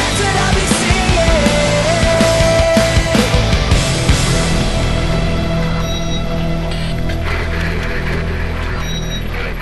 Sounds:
angry music
music

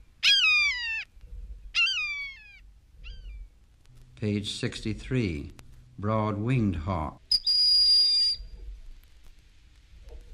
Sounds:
bird song
speech
bird

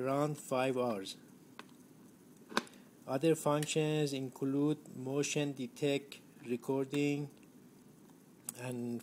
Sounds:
speech

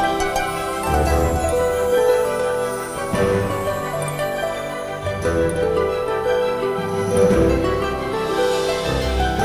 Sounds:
music

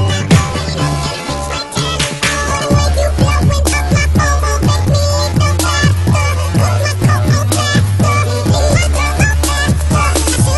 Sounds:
music

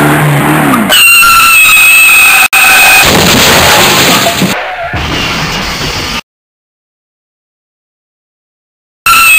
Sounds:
car
car passing by
skidding

